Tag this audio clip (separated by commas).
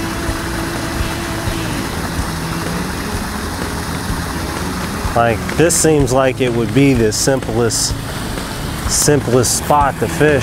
outside, rural or natural, Speech, Music